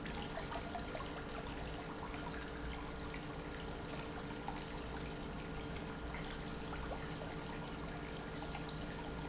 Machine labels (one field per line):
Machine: pump